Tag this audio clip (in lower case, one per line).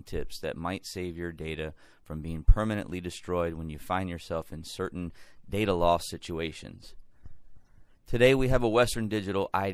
speech